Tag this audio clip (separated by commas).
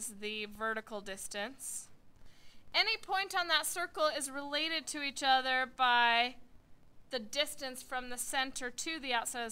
Speech